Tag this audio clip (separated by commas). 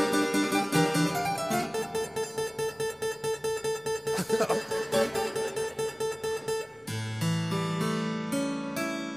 playing harpsichord